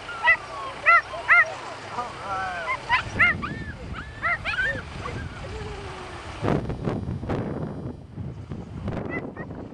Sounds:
Animal, Whimper (dog), Speech, Bow-wow, Dog, Domestic animals, Yip

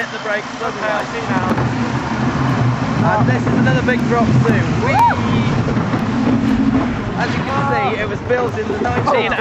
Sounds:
Speech

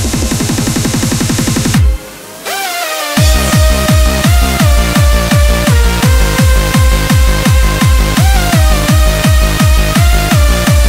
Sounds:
Dubstep, Music

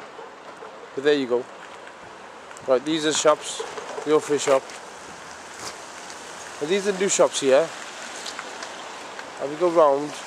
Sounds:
Raindrop, Rain

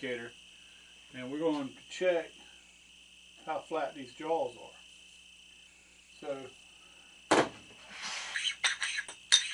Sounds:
Tools

